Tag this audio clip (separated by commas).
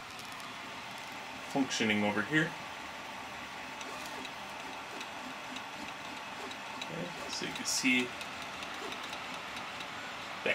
Printer, Speech